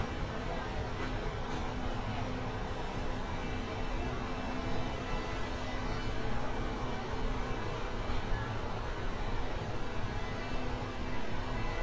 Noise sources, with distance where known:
engine of unclear size
car horn, far

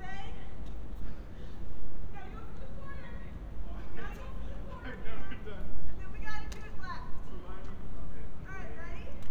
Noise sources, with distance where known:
person or small group shouting

